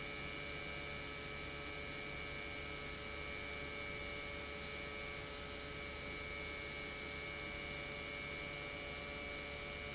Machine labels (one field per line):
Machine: pump